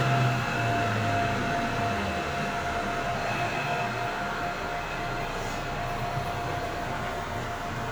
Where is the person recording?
on a subway train